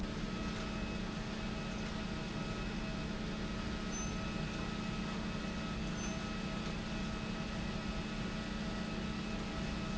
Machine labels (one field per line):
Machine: pump